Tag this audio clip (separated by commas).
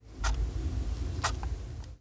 Clock, Mechanisms